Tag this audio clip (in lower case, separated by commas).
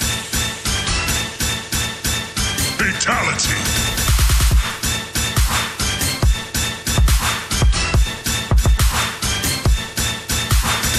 electronic music, dubstep, music